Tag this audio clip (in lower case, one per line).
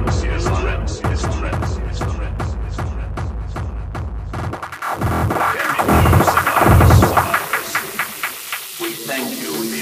speech
throbbing
music